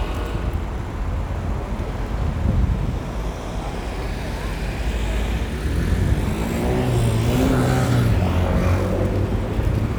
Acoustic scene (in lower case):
street